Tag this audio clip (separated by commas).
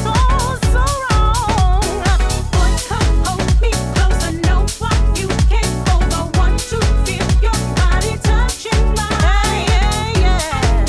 Music, Disco